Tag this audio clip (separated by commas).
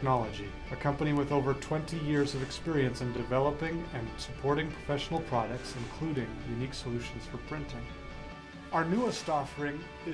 Speech, Music